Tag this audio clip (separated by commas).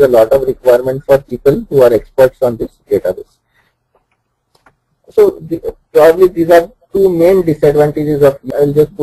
Speech